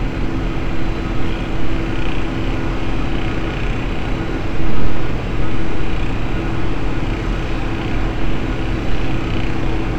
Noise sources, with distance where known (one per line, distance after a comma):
rock drill, near